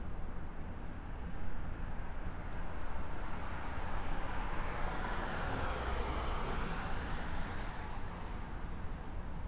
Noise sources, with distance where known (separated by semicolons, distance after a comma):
medium-sounding engine, near